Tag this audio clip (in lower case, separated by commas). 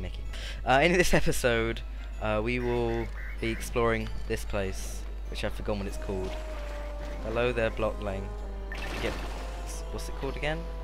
music, speech